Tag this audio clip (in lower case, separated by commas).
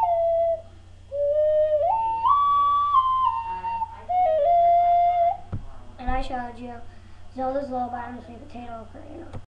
speech, child speech, lullaby, music